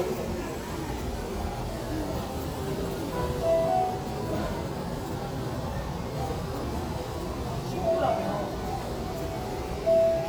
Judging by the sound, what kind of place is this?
restaurant